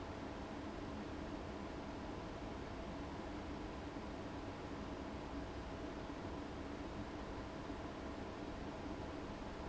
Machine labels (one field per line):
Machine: fan